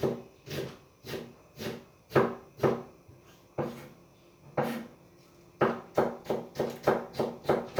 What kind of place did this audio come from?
kitchen